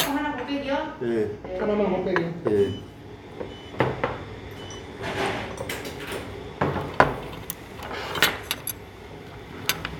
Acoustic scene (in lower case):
restaurant